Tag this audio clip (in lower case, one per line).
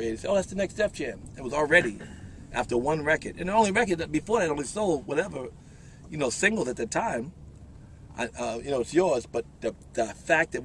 speech